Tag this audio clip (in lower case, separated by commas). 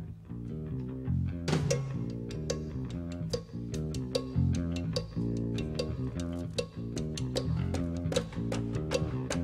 music, musical instrument, drum kit, drum, orchestra